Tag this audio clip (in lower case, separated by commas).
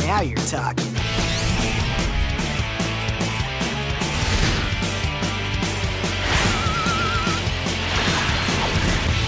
speech, music